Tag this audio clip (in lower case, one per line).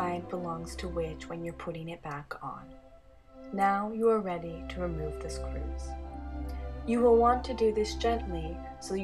speech
music